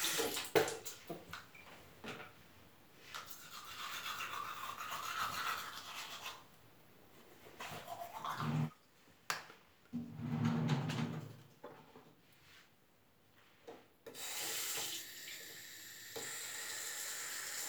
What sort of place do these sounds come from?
restroom